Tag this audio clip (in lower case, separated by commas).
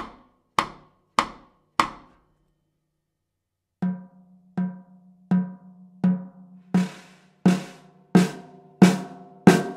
musical instrument, music, drum